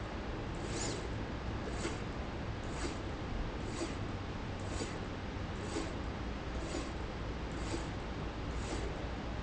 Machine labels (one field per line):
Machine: slide rail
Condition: abnormal